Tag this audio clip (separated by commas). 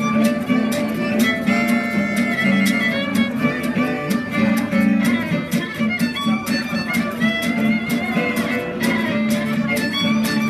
Flamenco, Guitar, Music, Bowed string instrument, Musical instrument, Plucked string instrument, Violin, Swing music